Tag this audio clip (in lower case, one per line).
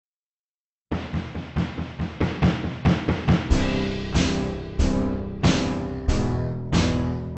music